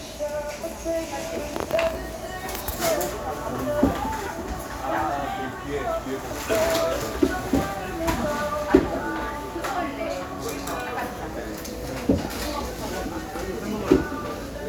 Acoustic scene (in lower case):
cafe